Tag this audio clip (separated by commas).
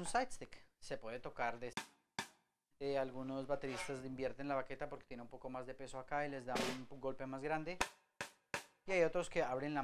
Drum, Percussion, Snare drum